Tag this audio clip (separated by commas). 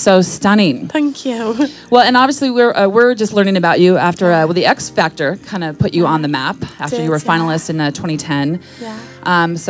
Speech